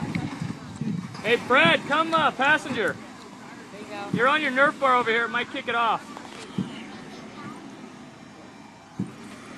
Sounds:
Vehicle, Speech, outside, rural or natural

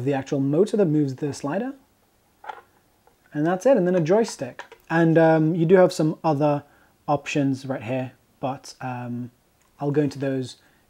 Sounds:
Speech

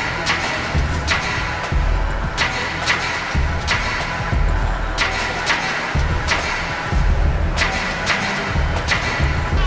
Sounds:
Music

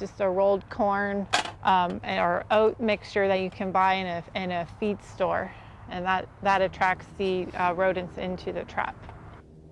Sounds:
Speech

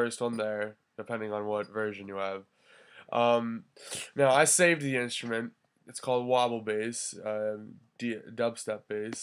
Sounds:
Speech

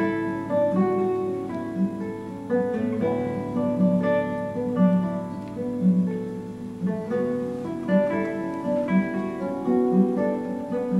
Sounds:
Musical instrument, Plucked string instrument, Guitar, Music, Strum, playing acoustic guitar, Acoustic guitar

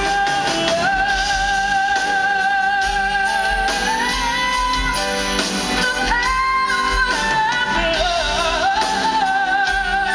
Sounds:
Female singing, Music

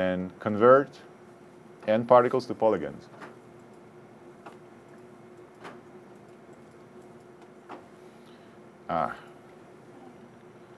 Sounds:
Speech

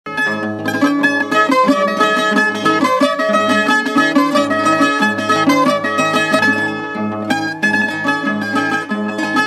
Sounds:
Musical instrument, Plucked string instrument, Mandolin, Music

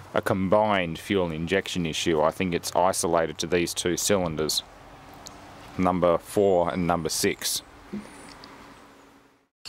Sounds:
Speech

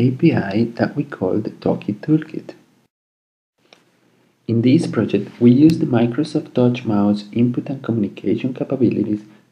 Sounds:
Speech

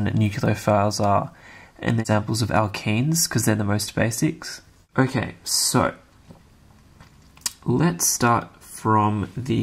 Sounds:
Speech

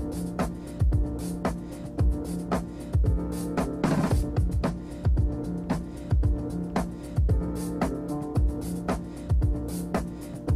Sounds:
Music

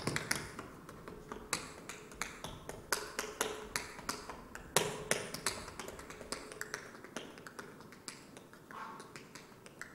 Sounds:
tap dancing

